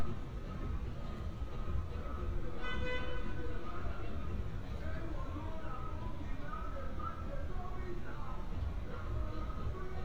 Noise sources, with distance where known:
car horn

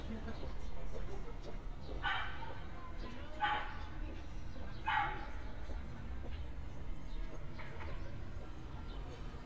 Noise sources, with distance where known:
dog barking or whining, far

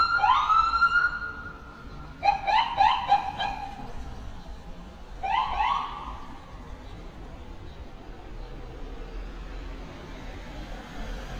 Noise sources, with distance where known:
siren, near

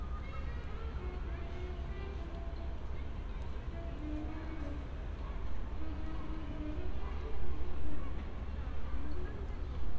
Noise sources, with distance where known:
music from an unclear source, far

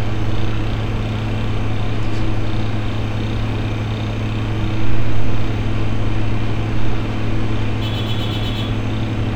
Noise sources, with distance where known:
car horn, near

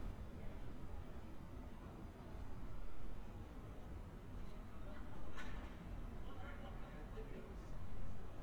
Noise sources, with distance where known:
unidentified human voice

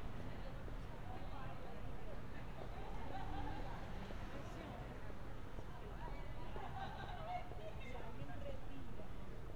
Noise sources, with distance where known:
person or small group talking

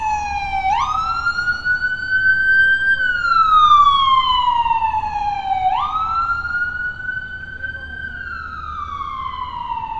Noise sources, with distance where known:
siren, near

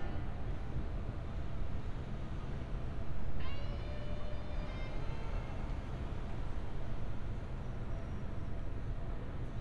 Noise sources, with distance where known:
music from a fixed source

